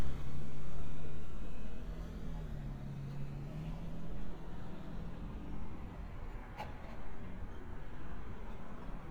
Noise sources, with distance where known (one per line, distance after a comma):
engine of unclear size